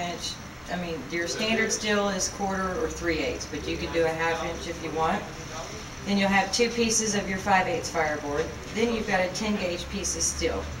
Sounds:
Speech

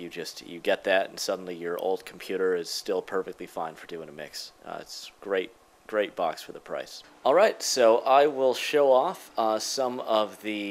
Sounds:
Speech

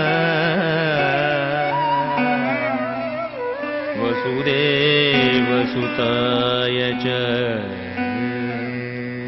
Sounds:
Music, Dance music

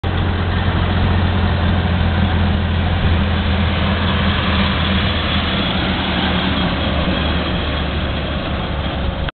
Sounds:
Truck, Vehicle

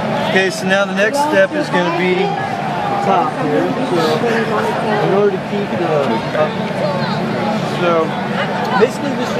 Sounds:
Speech

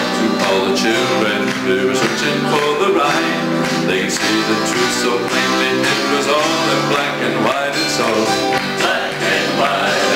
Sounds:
Male singing, Music

